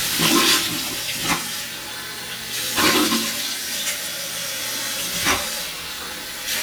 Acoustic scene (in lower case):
restroom